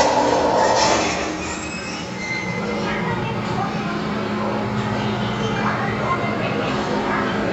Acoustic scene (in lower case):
elevator